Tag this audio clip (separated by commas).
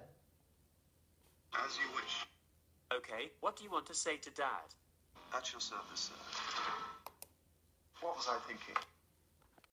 Speech